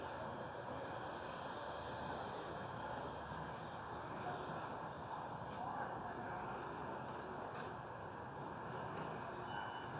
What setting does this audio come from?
residential area